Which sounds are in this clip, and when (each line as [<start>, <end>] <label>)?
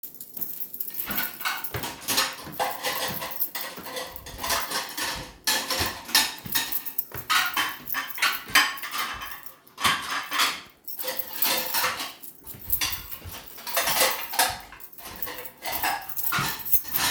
[0.00, 17.10] cutlery and dishes
[0.43, 17.11] footsteps
[0.76, 17.06] keys